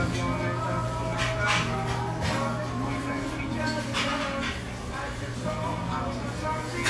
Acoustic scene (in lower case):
restaurant